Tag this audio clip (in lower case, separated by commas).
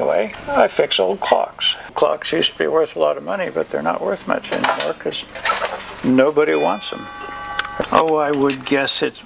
speech